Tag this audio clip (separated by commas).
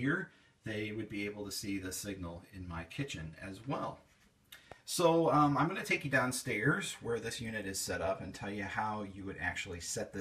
Television